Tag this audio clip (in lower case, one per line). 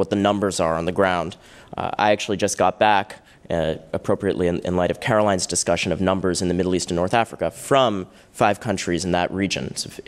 male speech
speech
monologue